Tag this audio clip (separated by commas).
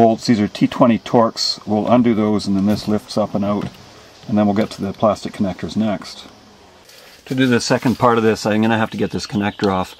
Speech